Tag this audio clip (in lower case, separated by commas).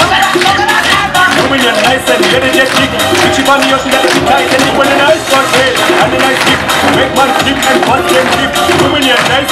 music, tap